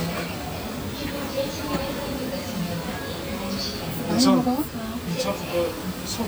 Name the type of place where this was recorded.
crowded indoor space